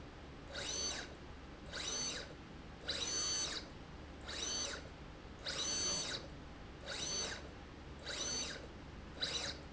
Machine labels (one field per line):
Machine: slide rail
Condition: abnormal